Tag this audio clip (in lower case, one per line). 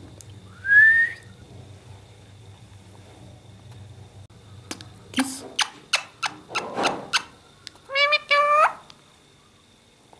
parrot talking